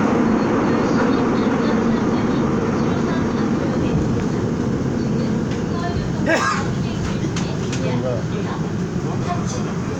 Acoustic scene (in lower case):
subway train